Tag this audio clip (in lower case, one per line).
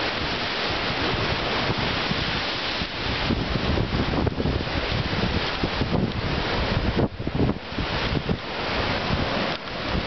wind
ocean
wind noise (microphone)
surf
ocean burbling